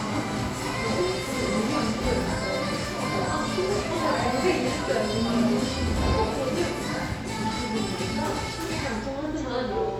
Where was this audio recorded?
in a cafe